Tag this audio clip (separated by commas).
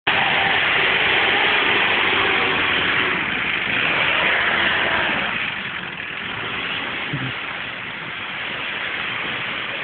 Vehicle, Car